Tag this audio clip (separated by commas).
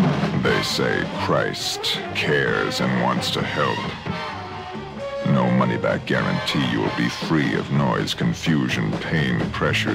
Speech, Music